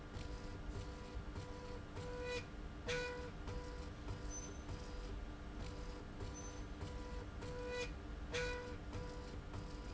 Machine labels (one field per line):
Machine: slide rail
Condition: normal